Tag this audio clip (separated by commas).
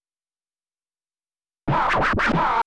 Musical instrument, Scratching (performance technique), Music